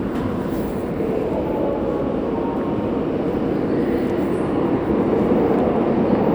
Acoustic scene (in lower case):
subway station